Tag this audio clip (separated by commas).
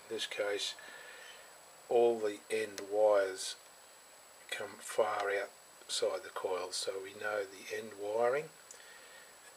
Speech